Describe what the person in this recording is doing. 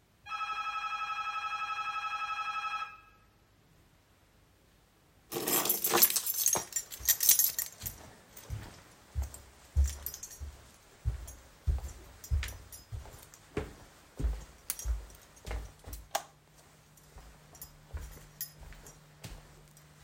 The doorbell rang. I picked up my keychain and walked to the living room. There i turned on the lights.